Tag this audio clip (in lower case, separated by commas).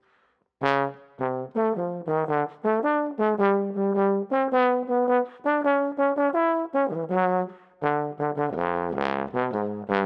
playing trombone